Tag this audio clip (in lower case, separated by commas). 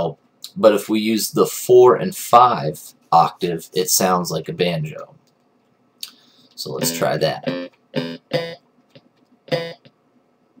speech